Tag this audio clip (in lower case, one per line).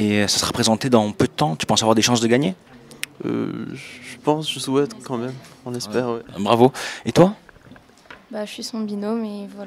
speech